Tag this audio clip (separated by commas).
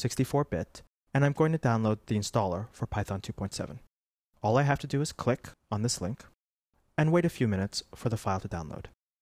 Speech